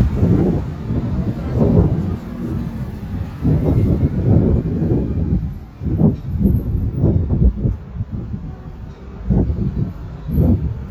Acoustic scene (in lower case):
street